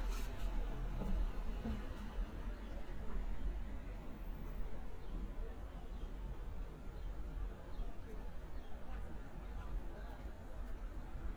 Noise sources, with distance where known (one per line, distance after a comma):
engine of unclear size